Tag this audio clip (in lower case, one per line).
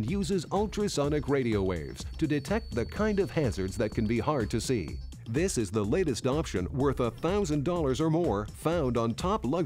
music
speech